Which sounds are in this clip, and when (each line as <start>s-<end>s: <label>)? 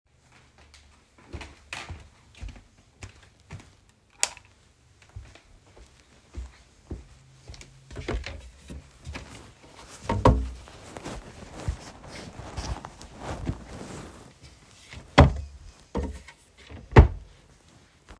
1.3s-4.1s: footsteps
4.2s-4.4s: light switch
6.3s-7.7s: footsteps
7.9s-8.9s: wardrobe or drawer
10.0s-10.6s: wardrobe or drawer
15.2s-15.5s: wardrobe or drawer
15.9s-17.4s: wardrobe or drawer